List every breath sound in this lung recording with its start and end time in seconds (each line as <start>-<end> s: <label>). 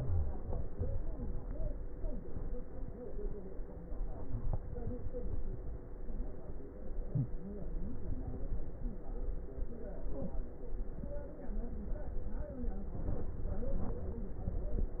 No breath sounds were labelled in this clip.